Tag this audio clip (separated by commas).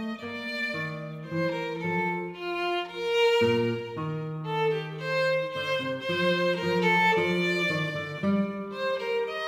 Musical instrument, fiddle, Music